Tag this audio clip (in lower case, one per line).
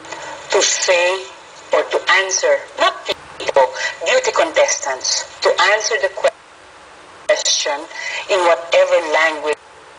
speech